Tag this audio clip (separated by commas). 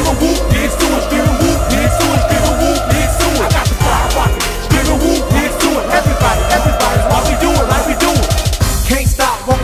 Music